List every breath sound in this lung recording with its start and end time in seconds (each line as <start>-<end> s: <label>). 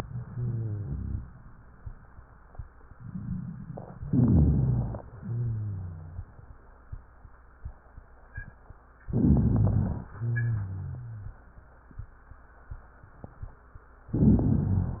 0.00-1.19 s: exhalation
0.10-1.19 s: wheeze
4.07-4.95 s: inhalation
4.07-4.95 s: rhonchi
5.16-6.24 s: exhalation
5.16-6.24 s: wheeze
9.14-10.03 s: inhalation
9.14-10.03 s: rhonchi
10.17-11.36 s: exhalation
10.17-11.36 s: wheeze
14.14-15.00 s: inhalation
14.14-15.00 s: rhonchi